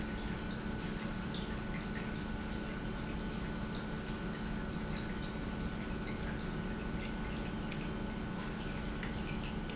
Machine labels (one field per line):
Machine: pump